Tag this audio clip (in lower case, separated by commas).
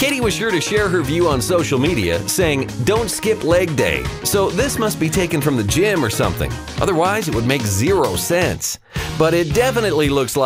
speech, music